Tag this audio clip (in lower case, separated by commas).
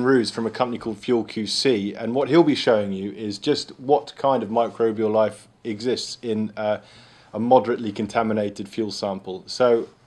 speech